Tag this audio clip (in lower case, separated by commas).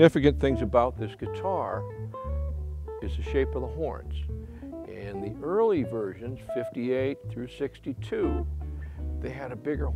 music, speech, guitar, musical instrument